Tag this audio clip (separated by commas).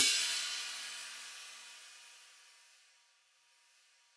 Musical instrument, Music, Percussion, Cymbal, Hi-hat